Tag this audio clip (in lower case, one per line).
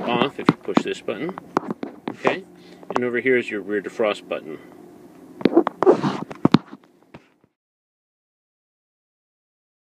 speech